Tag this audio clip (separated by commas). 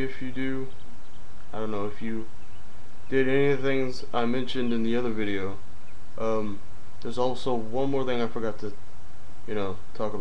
Speech